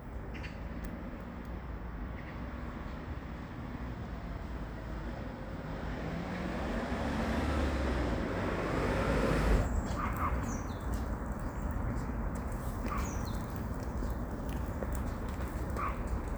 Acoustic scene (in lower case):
residential area